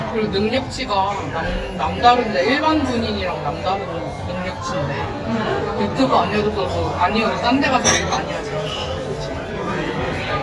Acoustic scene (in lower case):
crowded indoor space